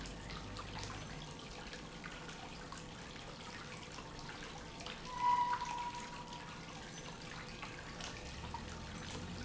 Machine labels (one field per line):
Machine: pump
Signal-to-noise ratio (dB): 0 dB